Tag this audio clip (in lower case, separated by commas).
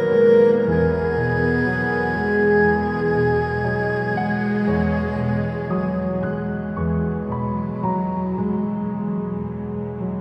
playing erhu